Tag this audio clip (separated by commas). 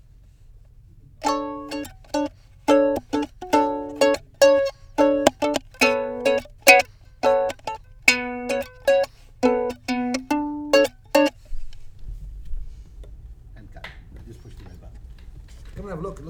Musical instrument, Music, Plucked string instrument